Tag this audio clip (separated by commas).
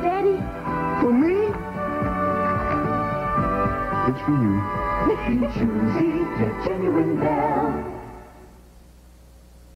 Music, Speech